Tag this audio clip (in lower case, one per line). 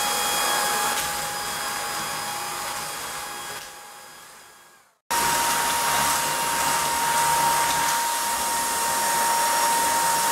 vacuum cleaner cleaning floors